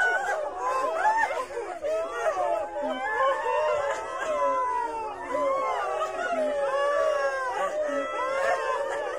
Women sobbing and babies crying